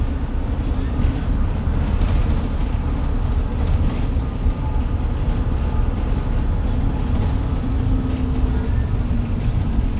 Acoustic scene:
bus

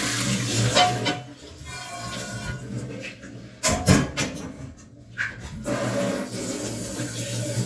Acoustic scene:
kitchen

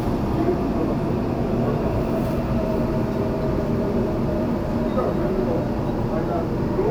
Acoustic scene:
subway train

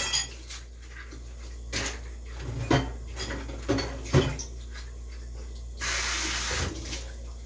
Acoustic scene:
kitchen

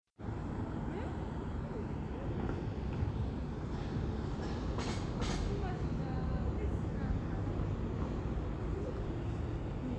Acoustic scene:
residential area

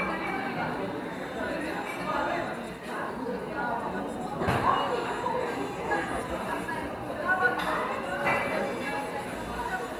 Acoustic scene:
cafe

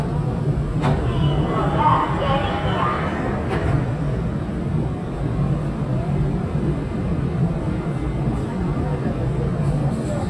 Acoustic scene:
subway train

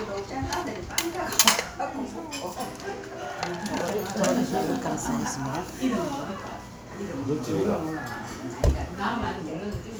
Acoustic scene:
crowded indoor space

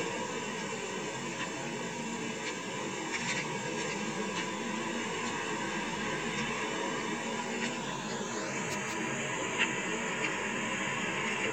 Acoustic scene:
car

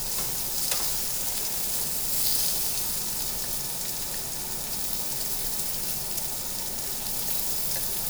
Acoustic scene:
restaurant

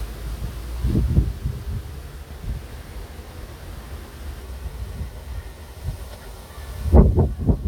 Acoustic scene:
residential area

